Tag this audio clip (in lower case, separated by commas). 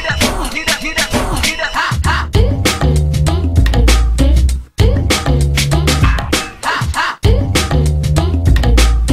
music